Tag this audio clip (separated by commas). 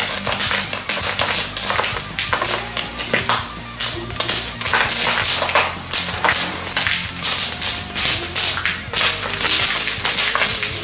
popping popcorn